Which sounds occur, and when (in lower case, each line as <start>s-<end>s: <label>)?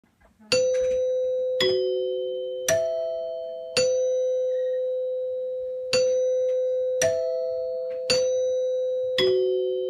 0.0s-9.8s: background noise
0.5s-9.8s: doorbell